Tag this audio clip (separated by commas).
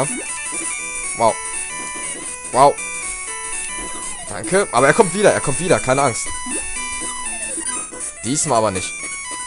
Music, Speech